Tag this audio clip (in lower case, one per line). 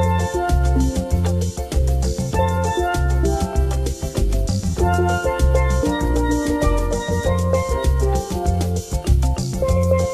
musical instrument
music